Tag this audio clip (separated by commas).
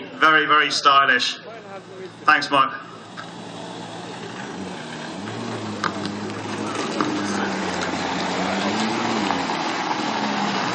outside, urban or man-made, Speech, Car, Vehicle